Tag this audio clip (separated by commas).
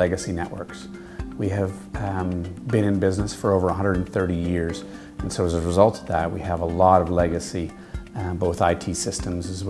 Speech, Music